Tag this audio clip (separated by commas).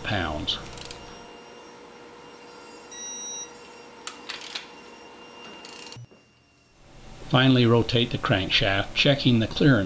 Speech